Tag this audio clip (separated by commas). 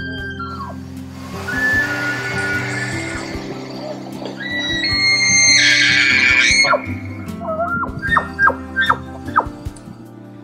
elk bugling